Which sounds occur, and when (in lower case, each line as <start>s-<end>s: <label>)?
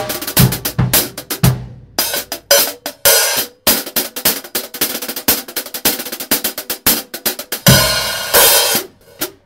0.0s-9.4s: music